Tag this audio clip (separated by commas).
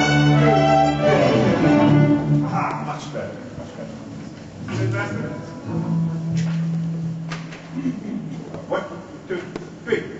Music, Orchestra, Musical instrument, Guitar, Speech